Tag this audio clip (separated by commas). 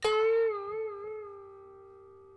Musical instrument, Music, Harp